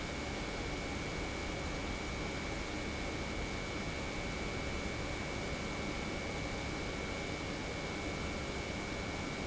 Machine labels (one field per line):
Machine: pump